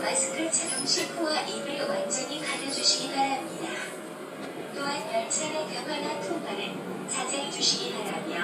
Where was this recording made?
on a subway train